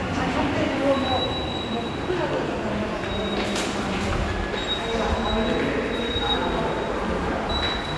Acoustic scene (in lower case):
subway station